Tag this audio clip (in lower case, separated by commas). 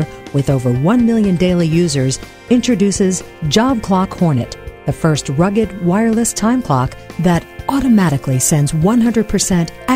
music, speech